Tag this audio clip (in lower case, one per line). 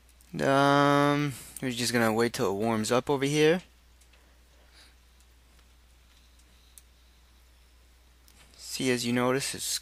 speech